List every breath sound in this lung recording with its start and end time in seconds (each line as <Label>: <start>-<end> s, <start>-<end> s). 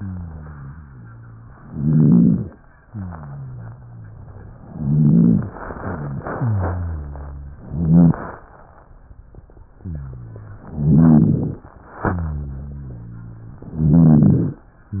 Inhalation: 1.61-2.57 s, 4.58-5.54 s, 7.63-8.45 s, 10.72-11.67 s, 13.73-14.64 s
Exhalation: 0.00-1.55 s, 2.83-4.52 s, 5.64-7.63 s, 11.86-13.65 s
Rhonchi: 0.00-1.55 s, 1.61-2.57 s, 2.83-4.52 s, 4.58-5.54 s, 5.76-7.61 s, 7.63-8.45 s, 10.72-11.67 s, 11.86-13.65 s, 13.73-14.64 s